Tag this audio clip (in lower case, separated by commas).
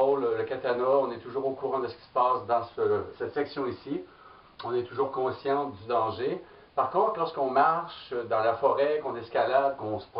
speech